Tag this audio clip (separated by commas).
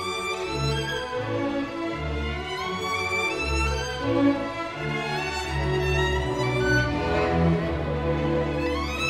Music, Musical instrument, fiddle